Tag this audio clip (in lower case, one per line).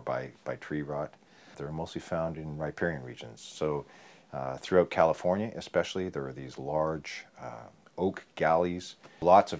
speech